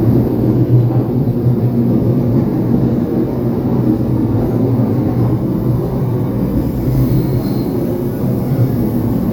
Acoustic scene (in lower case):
subway train